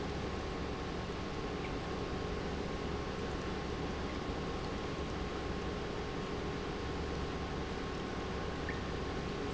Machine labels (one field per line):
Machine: pump